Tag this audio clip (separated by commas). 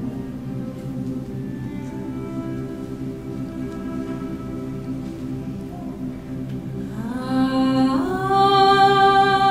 Musical instrument, Music